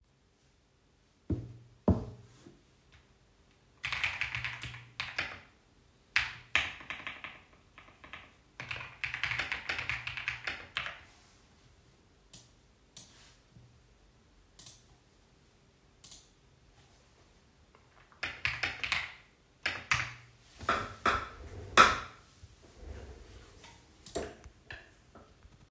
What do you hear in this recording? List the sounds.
keyboard typing